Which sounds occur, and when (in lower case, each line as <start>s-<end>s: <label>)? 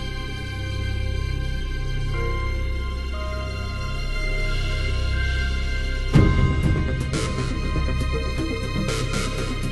0.0s-9.7s: music